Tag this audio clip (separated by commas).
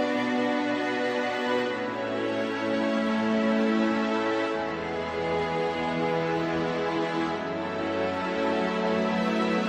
Music